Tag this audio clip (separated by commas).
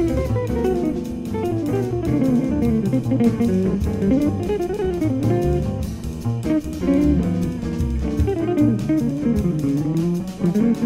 Electric guitar, Music